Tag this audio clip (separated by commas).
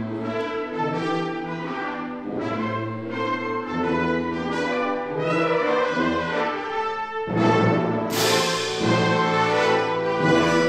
Music